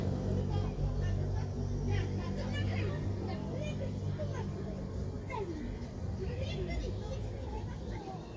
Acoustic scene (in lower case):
residential area